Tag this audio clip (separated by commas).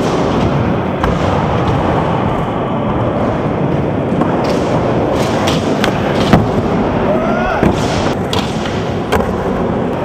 Skateboard, skateboarding